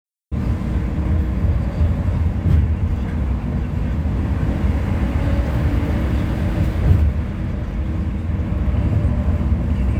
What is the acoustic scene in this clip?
bus